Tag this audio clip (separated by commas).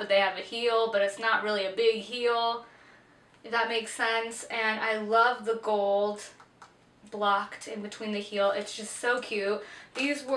Speech